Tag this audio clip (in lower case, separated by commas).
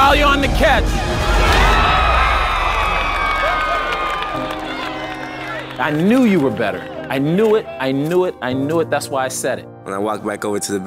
music, speech